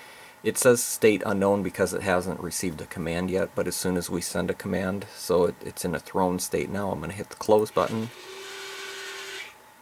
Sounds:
speech

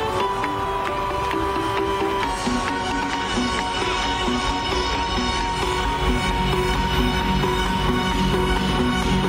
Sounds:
music, jazz

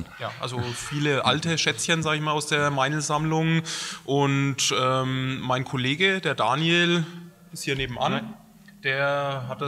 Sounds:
speech

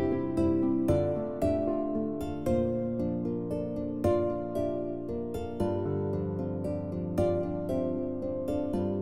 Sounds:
music

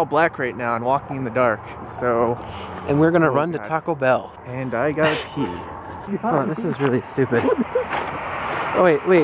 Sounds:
speech

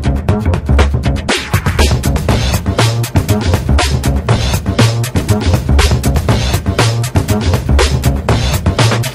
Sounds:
music

